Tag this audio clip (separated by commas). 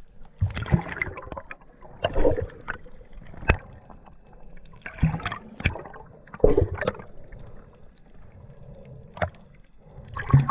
underwater bubbling